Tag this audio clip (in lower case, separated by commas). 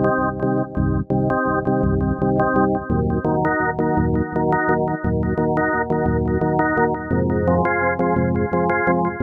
music